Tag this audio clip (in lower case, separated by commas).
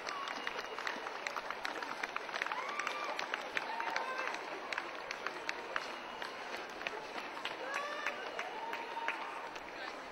people running, outside, urban or man-made, run, speech